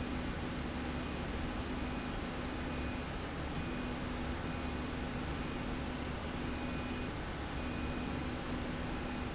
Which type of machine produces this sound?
slide rail